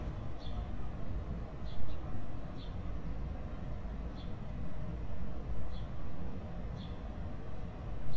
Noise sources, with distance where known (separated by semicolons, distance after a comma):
background noise